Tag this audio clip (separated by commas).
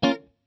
Guitar, Plucked string instrument, Music, Musical instrument